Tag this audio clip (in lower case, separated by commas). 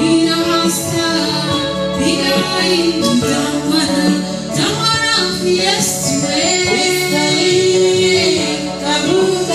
gospel music, music